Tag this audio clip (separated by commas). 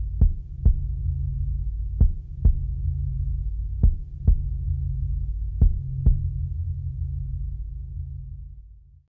Music